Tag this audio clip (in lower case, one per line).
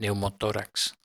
human voice